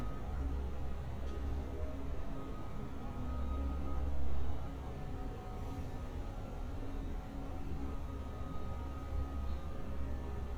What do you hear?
unidentified alert signal